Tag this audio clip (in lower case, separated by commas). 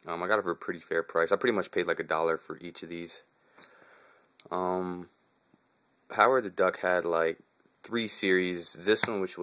speech